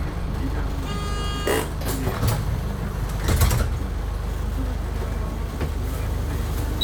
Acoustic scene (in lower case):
bus